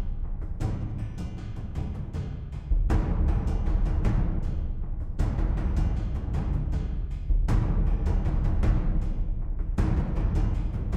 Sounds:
music

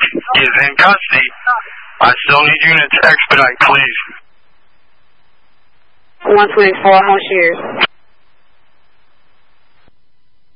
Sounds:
police radio chatter

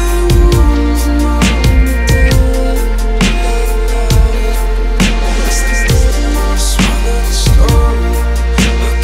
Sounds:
music
dubstep
electronic music

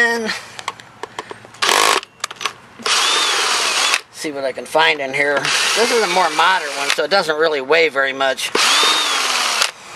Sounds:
tools
power tool

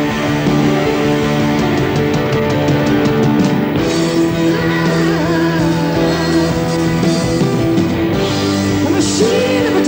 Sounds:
music

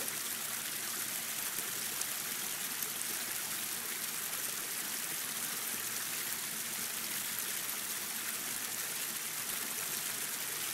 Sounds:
stream burbling

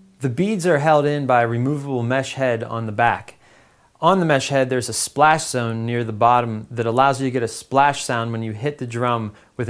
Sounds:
speech

